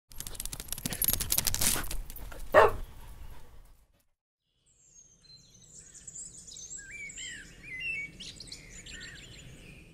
Loud rapid clicking followed by a dog barking and birds chirping